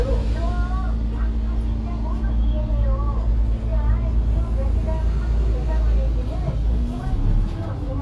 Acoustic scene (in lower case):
bus